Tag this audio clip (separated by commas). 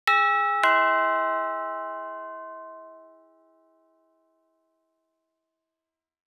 Alarm, Door, Domestic sounds, Doorbell